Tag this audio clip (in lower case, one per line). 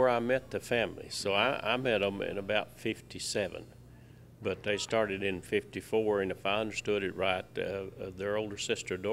speech